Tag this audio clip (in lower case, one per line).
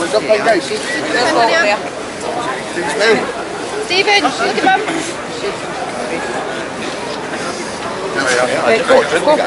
crowd
speech
outside, urban or man-made